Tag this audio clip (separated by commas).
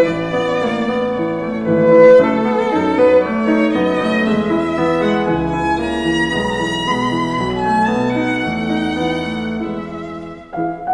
Musical instrument, fiddle, Music